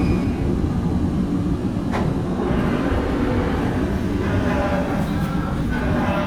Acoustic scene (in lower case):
subway train